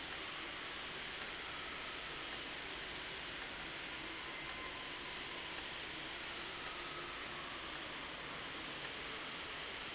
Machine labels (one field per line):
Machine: valve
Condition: abnormal